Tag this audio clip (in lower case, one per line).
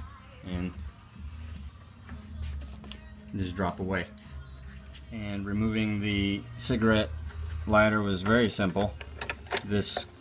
speech